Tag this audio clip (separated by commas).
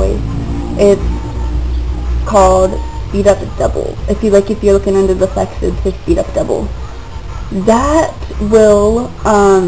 Speech